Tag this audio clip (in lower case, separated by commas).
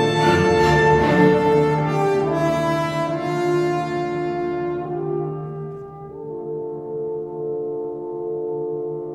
bowed string instrument, fiddle, cello